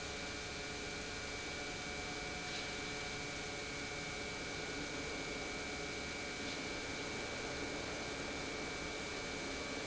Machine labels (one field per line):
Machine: pump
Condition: normal